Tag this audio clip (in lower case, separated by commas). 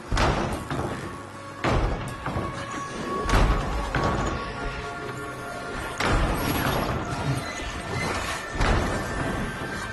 inside a large room or hall, slam, music